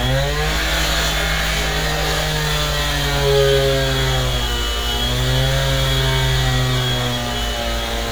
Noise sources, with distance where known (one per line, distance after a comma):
unidentified powered saw, near